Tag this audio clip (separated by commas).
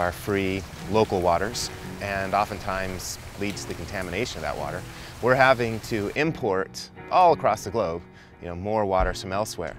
Music, Stream, Speech